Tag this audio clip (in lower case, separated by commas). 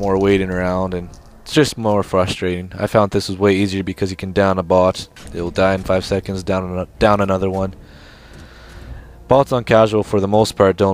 speech, music